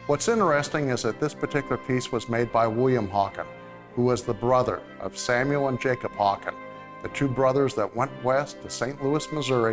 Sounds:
speech, music

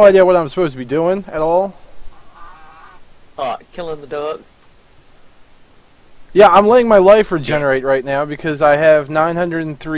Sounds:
speech, duck

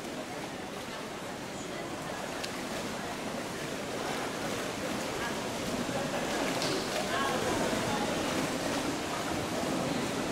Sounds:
speech

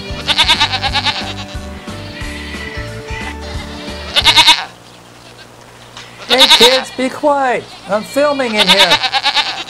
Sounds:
goat, speech, music, animal, bleat

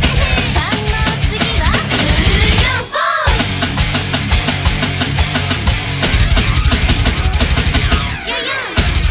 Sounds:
drum, drum kit, music

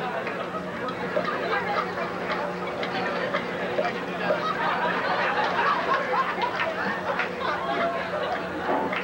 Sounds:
speech

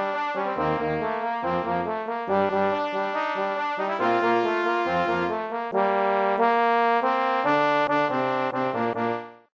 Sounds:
trombone, brass instrument

